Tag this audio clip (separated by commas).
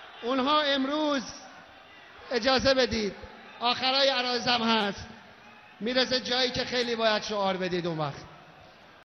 man speaking, Speech, Narration